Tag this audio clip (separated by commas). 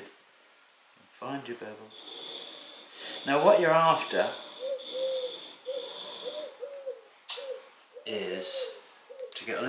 Speech, Tools